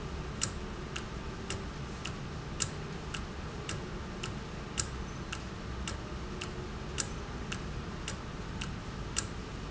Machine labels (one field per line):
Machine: valve